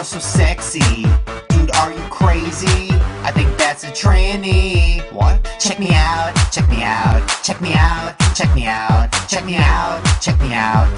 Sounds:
music, blues

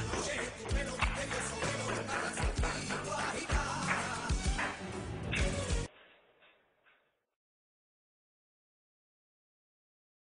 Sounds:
music

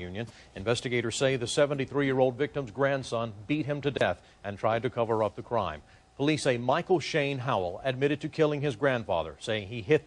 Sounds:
speech

